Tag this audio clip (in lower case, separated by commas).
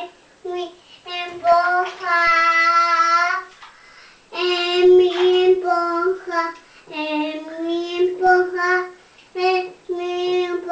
child singing, bathtub (filling or washing)